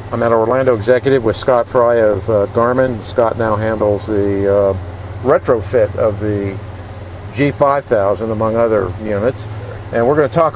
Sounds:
Vehicle

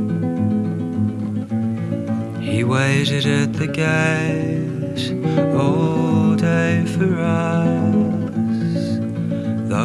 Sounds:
Music

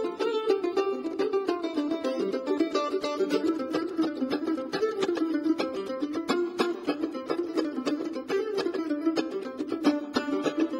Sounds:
Music, Mandolin

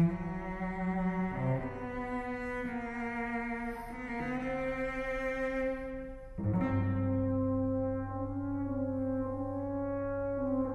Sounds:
Musical instrument, Music, Bowed string instrument, Cello, playing cello, Classical music, Orchestra

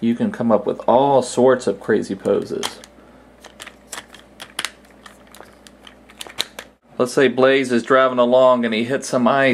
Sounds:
Speech

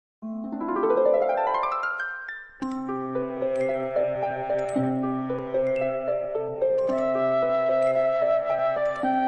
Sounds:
Music, Speech

